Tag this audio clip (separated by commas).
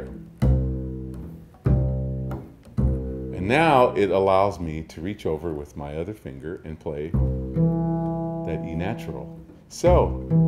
Musical instrument, Music, Speech, Bowed string instrument